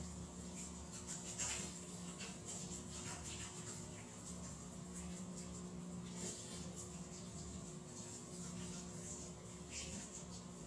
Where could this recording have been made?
in a restroom